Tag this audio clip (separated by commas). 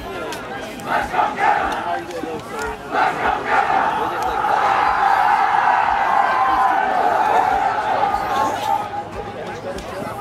Speech